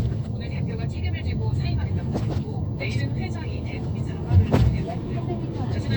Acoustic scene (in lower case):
car